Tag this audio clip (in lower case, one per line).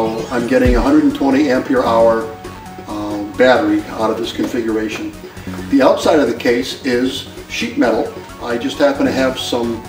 music
speech